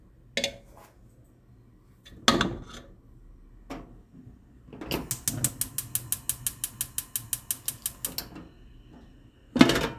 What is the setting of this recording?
kitchen